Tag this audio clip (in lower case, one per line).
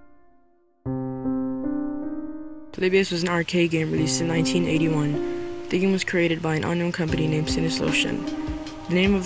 keyboard (musical)
piano